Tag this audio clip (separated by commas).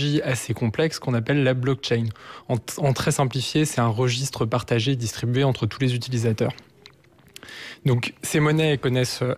Speech